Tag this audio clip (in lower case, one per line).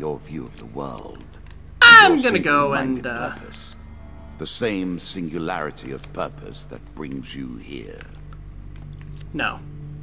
speech